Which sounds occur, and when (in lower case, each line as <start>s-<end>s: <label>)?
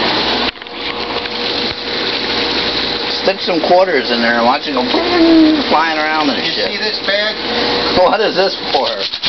0.0s-9.2s: liquid
0.0s-9.2s: mechanisms
0.0s-9.2s: sink (filling or washing)
0.5s-1.5s: generic impact sounds
3.2s-9.2s: conversation
3.2s-7.3s: male speech
8.0s-9.0s: male speech
8.7s-9.2s: generic impact sounds